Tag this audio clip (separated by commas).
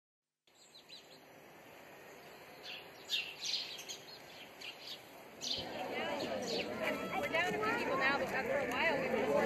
Chirp, Bird vocalization, Bird